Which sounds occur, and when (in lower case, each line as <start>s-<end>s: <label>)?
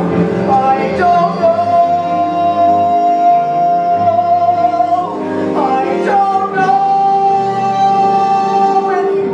0.0s-9.3s: music
0.3s-5.2s: male singing
5.4s-9.3s: male singing